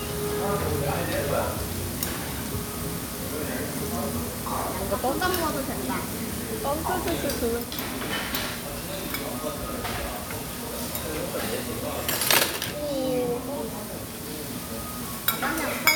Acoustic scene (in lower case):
restaurant